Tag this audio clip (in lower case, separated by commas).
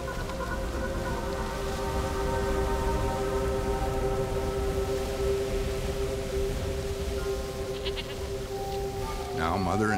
goat bleating